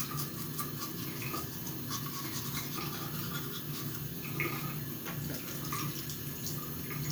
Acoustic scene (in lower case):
restroom